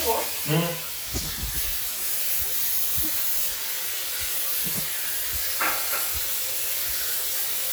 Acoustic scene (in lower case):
restroom